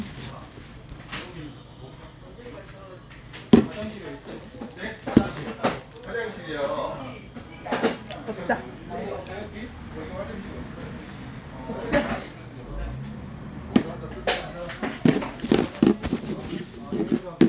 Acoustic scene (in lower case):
restaurant